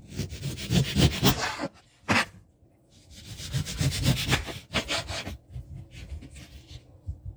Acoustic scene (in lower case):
kitchen